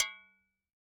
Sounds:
tap
home sounds
dishes, pots and pans
glass

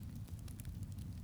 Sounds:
crackle
fire

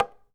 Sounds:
tap

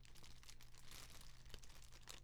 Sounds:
fire

